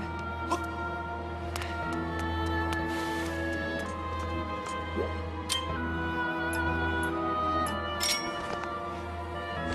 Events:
0.0s-9.7s: video game sound
0.0s-9.7s: music
0.1s-0.2s: footsteps
0.5s-0.6s: human voice
1.5s-4.3s: run
1.6s-1.8s: breathing
4.6s-4.8s: footsteps
5.0s-5.1s: sound effect
5.4s-5.7s: sound effect
6.5s-6.6s: clicking
7.0s-7.1s: clicking
7.6s-7.7s: clicking
8.0s-8.3s: sound effect
8.4s-8.6s: footsteps
8.9s-9.1s: surface contact

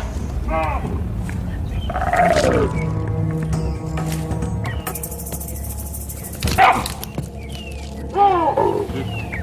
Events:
0.0s-9.4s: wind
0.5s-0.8s: animal
1.7s-1.9s: bird call
1.9s-2.7s: roar
2.6s-9.4s: music
2.7s-2.8s: bird call
4.0s-4.2s: generic impact sounds
4.6s-4.8s: bird call
5.4s-5.6s: bird call
6.1s-6.3s: bird call
6.4s-6.5s: generic impact sounds
6.6s-6.8s: bark
6.8s-7.0s: generic impact sounds
7.0s-7.1s: bird call
7.3s-8.0s: bird call
8.1s-9.1s: animal
9.0s-9.4s: bird call

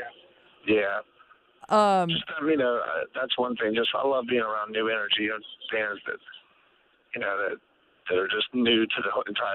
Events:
0.0s-0.1s: male speech
0.0s-9.5s: background noise
0.0s-9.5s: conversation
0.7s-1.0s: male speech
1.6s-2.2s: woman speaking
2.1s-6.4s: male speech
7.1s-7.6s: male speech
8.1s-9.5s: male speech

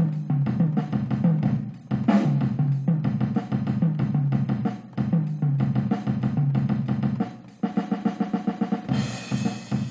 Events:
0.0s-9.9s: music

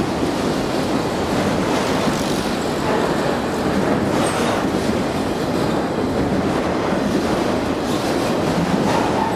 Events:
0.0s-9.3s: train
0.0s-9.3s: wind
1.3s-4.5s: clickety-clack
5.6s-9.3s: clickety-clack

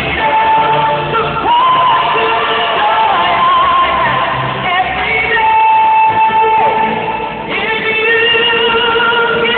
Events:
0.0s-1.1s: female singing
0.0s-9.5s: music
1.3s-4.2s: female singing
4.6s-6.9s: female singing
7.5s-9.5s: female singing

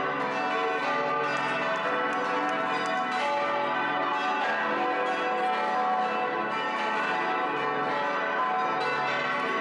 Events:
0.0s-9.6s: change ringing (campanology)

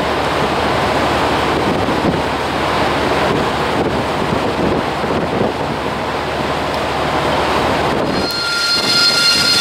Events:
0.0s-8.2s: ship
0.0s-8.3s: ocean
3.0s-8.2s: wind noise (microphone)
8.0s-9.6s: squeak

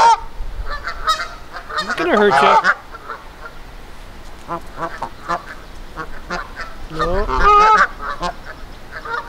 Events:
0.0s-0.3s: bird
0.0s-9.2s: noise
0.6s-2.7s: bird
1.9s-2.7s: man speaking
2.8s-3.5s: bird
4.5s-4.6s: bird
4.7s-5.6s: bird
5.9s-6.1s: bird
6.2s-6.8s: bird
6.9s-7.3s: man speaking
7.3s-7.9s: bird
8.0s-8.5s: bird

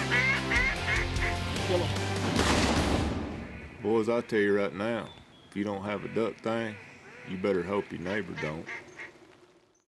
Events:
0.0s-2.3s: music
2.3s-3.3s: gunfire
2.4s-9.8s: background noise
5.9s-9.1s: duck
7.3s-8.6s: man speaking
9.7s-9.8s: bird vocalization

